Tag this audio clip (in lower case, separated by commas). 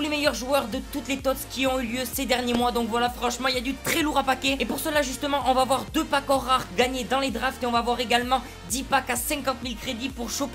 music, speech